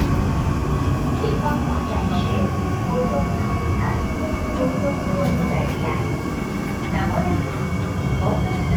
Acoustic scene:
subway train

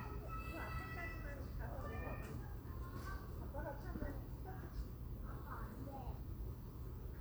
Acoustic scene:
residential area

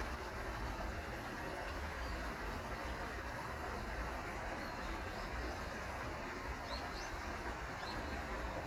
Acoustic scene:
park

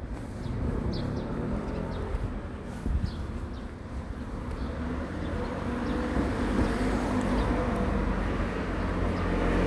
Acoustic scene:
residential area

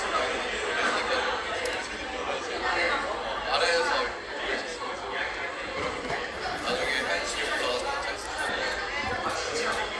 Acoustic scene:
cafe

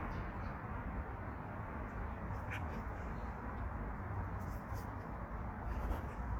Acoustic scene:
street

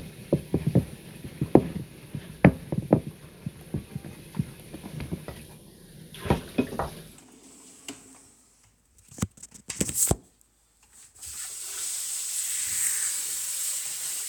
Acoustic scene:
kitchen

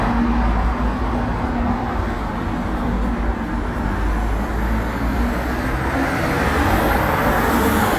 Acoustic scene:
street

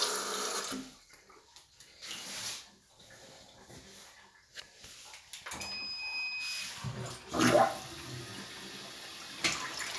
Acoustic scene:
restroom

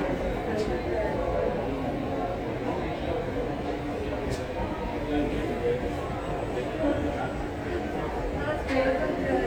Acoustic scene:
subway station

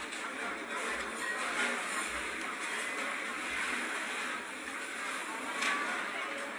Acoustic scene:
restaurant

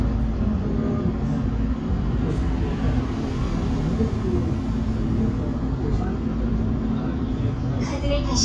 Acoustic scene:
bus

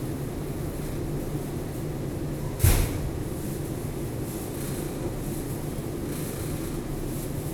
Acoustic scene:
subway station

